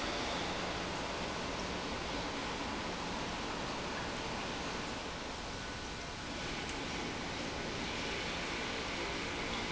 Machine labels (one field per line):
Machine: pump